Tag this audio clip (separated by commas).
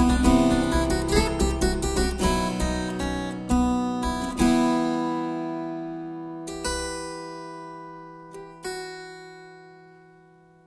playing harpsichord